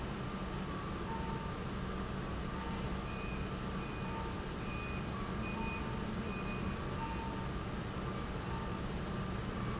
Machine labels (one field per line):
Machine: pump